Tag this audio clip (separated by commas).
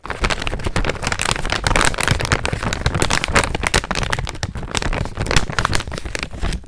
Crumpling